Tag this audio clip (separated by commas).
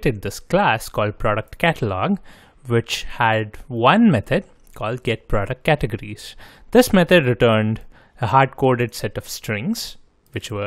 Speech